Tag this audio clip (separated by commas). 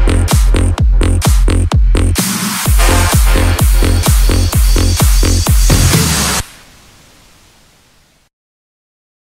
Electronic dance music, Music